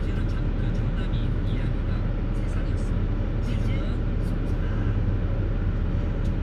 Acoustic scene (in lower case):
car